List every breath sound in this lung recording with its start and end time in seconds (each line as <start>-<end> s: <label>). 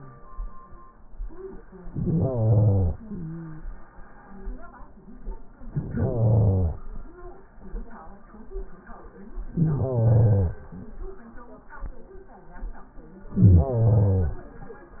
1.90-2.95 s: inhalation
2.94-3.60 s: stridor
2.94-3.99 s: exhalation
5.64-6.79 s: inhalation
9.48-10.64 s: inhalation
13.32-14.48 s: inhalation